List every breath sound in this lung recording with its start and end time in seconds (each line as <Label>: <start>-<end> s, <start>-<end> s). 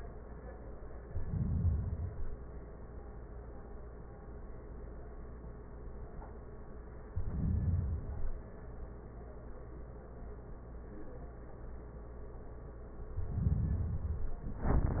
Inhalation: 0.99-2.49 s, 7.04-8.54 s, 13.09-14.59 s